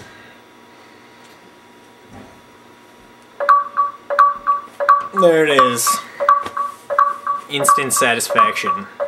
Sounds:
alarm, speech

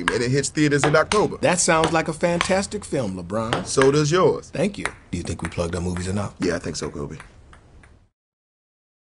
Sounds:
speech

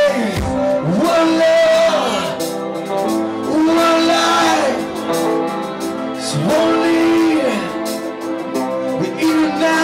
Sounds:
music

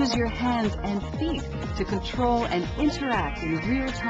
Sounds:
speech, music

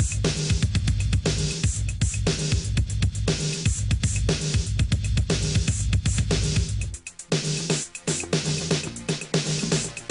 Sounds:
music, sampler

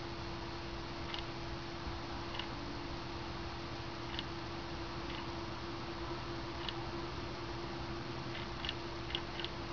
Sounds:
tick-tock, tick

